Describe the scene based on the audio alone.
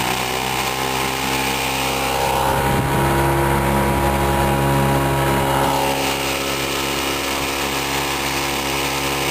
A boat motor is running and fades slightly